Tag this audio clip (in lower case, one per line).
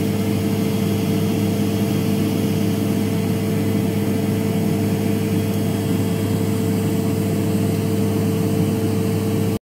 aircraft